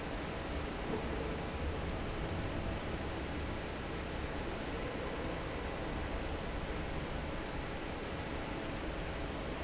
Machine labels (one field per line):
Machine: fan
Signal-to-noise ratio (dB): -6 dB